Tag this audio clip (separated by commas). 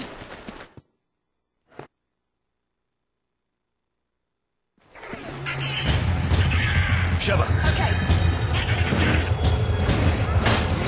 Music, Run, Speech